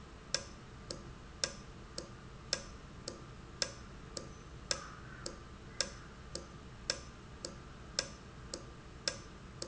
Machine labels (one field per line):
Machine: valve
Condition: normal